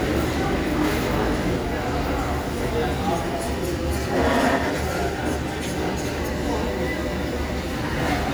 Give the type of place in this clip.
crowded indoor space